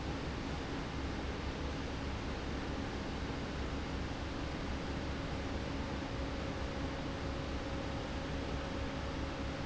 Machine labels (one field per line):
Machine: fan